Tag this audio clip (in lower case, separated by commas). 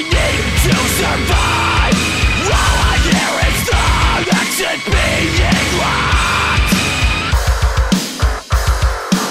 angry music, music